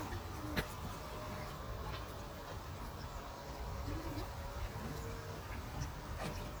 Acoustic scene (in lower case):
park